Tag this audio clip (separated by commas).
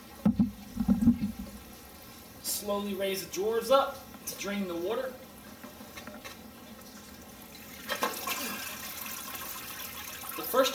Water, Liquid, Speech, inside a small room